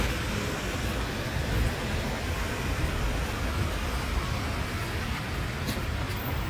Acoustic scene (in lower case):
street